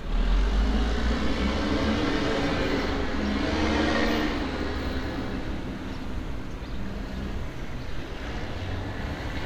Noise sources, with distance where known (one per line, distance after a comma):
large-sounding engine, near